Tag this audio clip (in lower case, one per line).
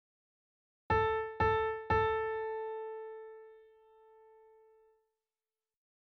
keyboard (musical)
musical instrument
piano
music